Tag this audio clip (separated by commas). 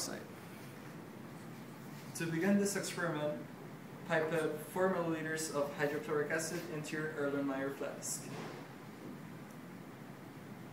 Speech